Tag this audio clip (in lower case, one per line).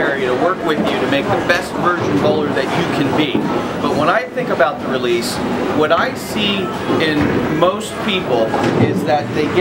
speech